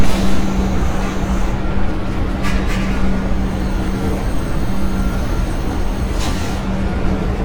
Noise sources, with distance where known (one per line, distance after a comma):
engine of unclear size, near
small or medium rotating saw